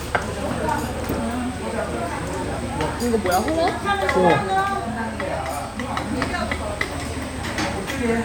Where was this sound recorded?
in a restaurant